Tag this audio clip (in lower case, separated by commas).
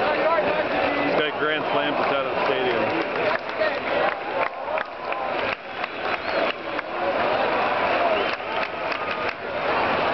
speech